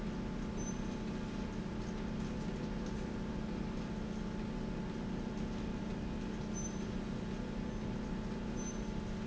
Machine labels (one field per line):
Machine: slide rail